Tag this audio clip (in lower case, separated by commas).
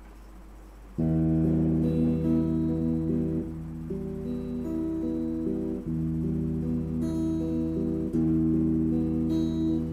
guitar, musical instrument, music, electric guitar, plucked string instrument